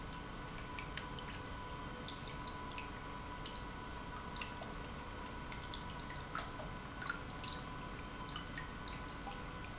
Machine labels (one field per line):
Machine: pump